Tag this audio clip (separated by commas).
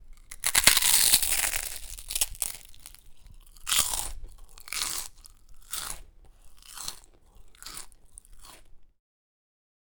Chewing